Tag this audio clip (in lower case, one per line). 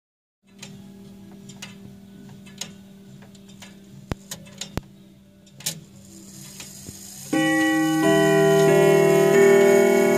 tubular bells